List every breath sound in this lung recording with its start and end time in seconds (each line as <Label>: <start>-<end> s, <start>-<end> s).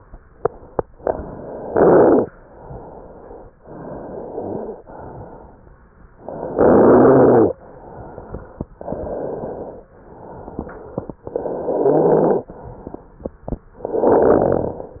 Inhalation: 1.00-2.22 s, 3.60-4.82 s, 6.22-7.52 s, 8.80-9.86 s, 11.24-12.42 s, 13.82-15.00 s
Exhalation: 2.26-3.48 s, 4.84-6.06 s, 7.54-8.68 s, 9.96-11.14 s, 12.48-13.66 s